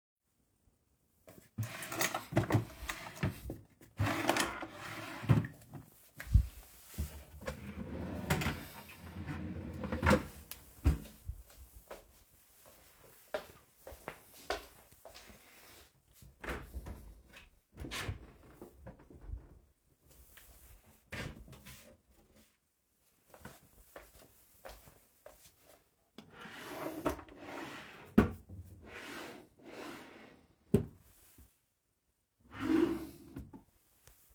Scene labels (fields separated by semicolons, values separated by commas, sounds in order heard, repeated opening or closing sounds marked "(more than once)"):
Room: bedroom; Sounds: wardrobe or drawer (more than once), footsteps